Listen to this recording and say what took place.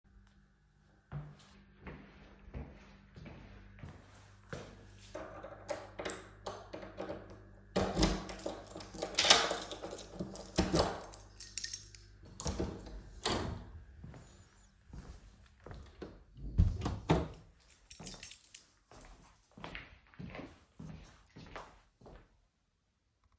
I open the lock on the door with my key, and walk into the room.